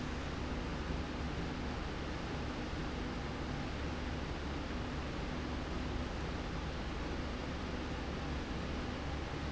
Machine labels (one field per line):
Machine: slide rail